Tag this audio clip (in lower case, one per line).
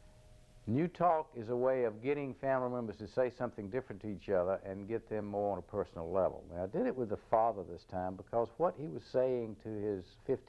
speech